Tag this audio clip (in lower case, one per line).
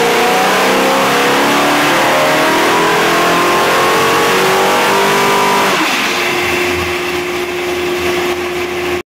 vroom
idling
engine